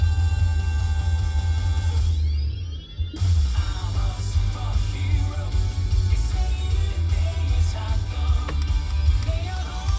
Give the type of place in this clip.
car